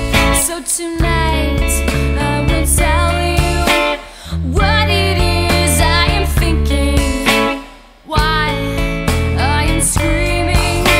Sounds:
Music, Soul music

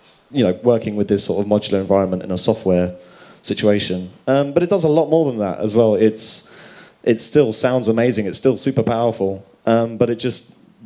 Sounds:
Speech

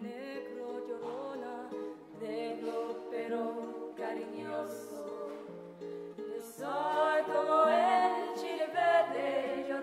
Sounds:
Music

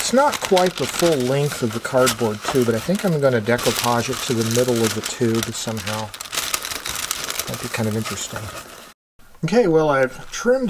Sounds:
typing on typewriter

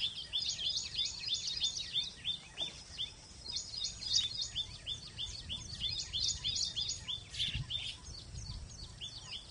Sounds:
bird call, Bird

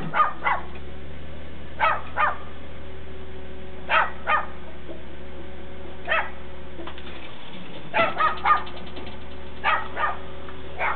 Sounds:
Vehicle, Car

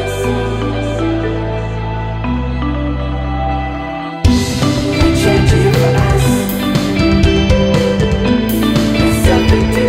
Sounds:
Music, Background music, Blues

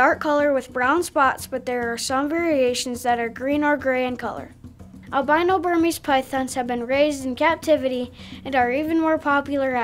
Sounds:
Music, Speech

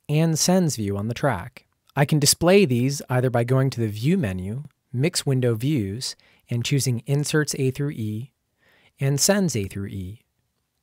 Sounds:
Speech

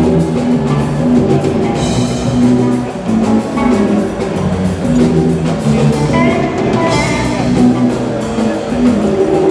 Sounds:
Music

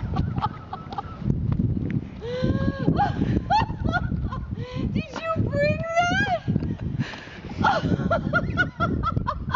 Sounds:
Speech

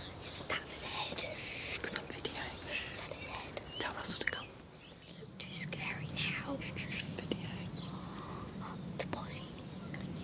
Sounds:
Speech, Whispering

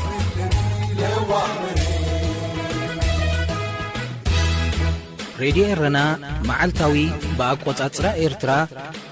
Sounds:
Speech, Music

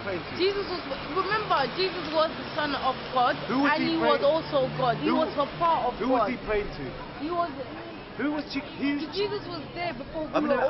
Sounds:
Speech

